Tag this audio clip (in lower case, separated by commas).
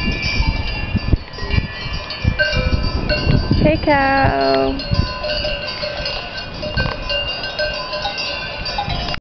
cowbell